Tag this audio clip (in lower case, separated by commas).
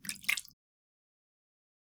splash, liquid